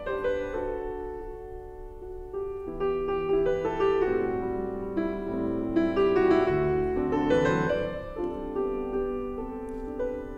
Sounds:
Piano, Harpsichord

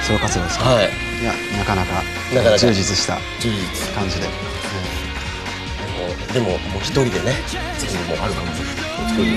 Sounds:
Speech, Music

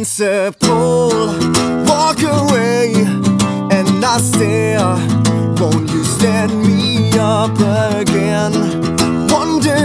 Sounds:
Music

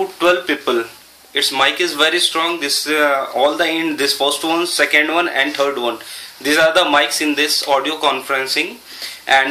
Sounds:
Speech

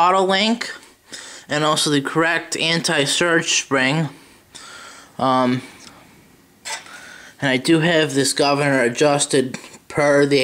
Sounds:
Speech

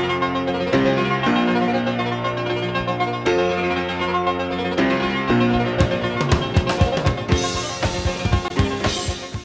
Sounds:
Music

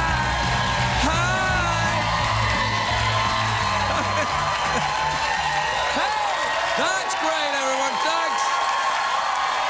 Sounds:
Music, Speech

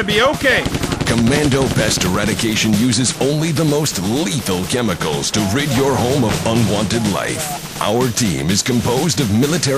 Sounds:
Speech

